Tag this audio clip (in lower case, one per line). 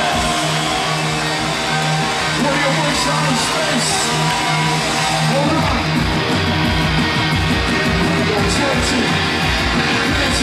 speech
music